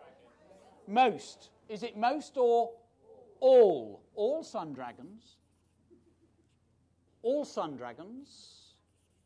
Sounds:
Speech

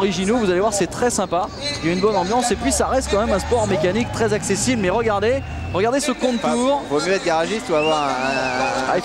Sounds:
Speech, Car, Vehicle

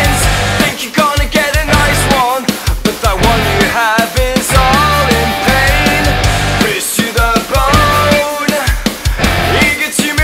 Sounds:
Music

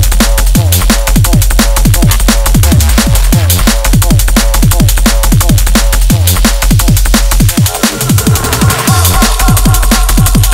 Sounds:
Music, Drum and bass

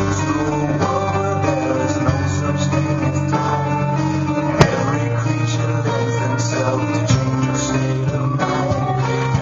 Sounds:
Strum, Music, Musical instrument

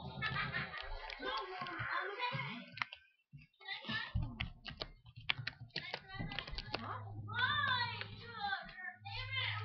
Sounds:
Speech

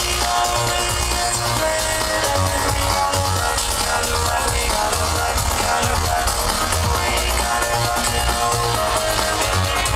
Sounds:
Dance music, Music

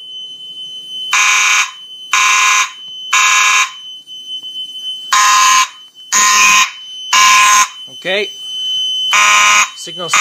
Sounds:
Speech, Fire alarm

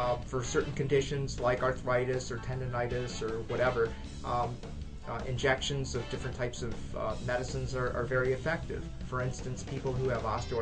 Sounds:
Speech, Music

